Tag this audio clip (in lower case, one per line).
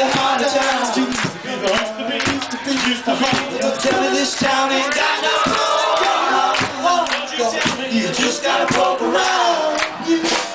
speech
music